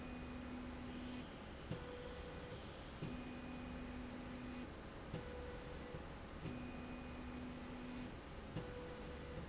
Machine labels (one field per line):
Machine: slide rail